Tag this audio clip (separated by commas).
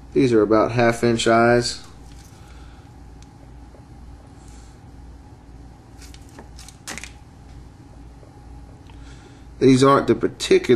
Speech